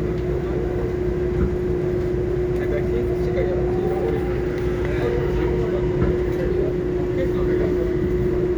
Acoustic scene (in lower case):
subway train